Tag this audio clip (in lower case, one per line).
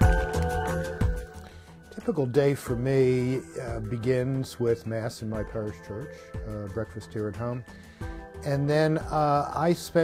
music
speech